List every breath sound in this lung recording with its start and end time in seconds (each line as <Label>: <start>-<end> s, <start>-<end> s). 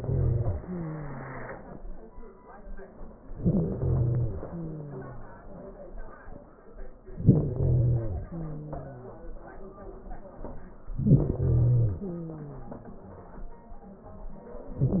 Inhalation: 3.29-4.34 s, 7.20-8.26 s, 10.98-11.98 s
Exhalation: 4.38-5.43 s, 8.26-9.31 s, 11.96-12.97 s